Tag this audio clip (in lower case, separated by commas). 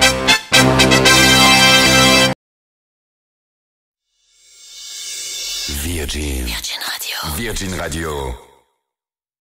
speech, music